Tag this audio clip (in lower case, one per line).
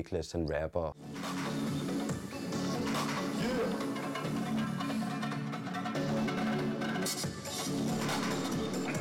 speech
roll
music